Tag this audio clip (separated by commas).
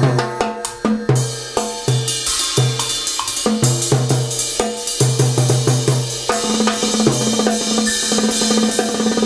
playing timbales